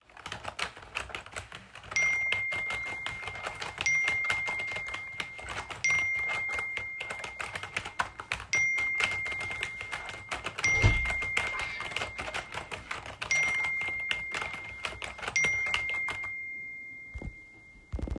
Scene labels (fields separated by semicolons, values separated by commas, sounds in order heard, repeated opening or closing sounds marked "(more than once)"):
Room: office; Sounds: keyboard typing, phone ringing, door